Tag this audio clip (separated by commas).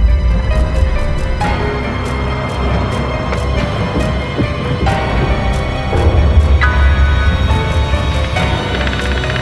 Music